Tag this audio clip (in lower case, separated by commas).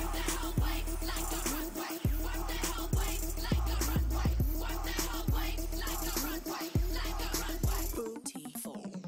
music